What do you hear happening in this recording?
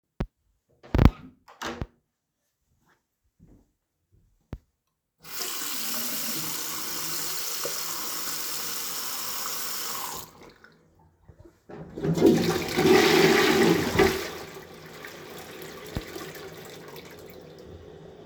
I opened the bathroom door and turned on the water. After a few seconds i turned off the water and then flushed the toilet.